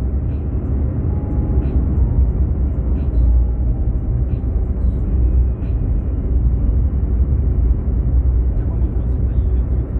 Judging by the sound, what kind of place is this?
car